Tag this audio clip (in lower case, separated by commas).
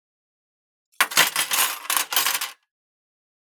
silverware, domestic sounds